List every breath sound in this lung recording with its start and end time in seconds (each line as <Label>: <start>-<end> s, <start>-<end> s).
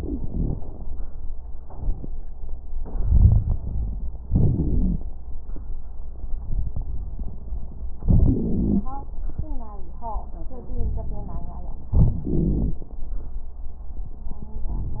Inhalation: 2.82-4.22 s, 8.08-8.87 s, 11.95-12.84 s
Exhalation: 4.25-5.11 s, 10.65-11.86 s
Wheeze: 8.08-8.87 s, 11.95-12.84 s
Crackles: 2.82-4.22 s, 4.25-5.11 s, 10.65-11.86 s